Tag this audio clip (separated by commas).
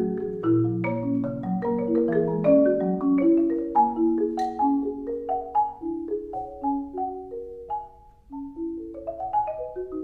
playing marimba, Music, xylophone